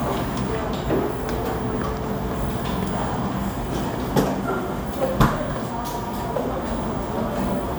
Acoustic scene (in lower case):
cafe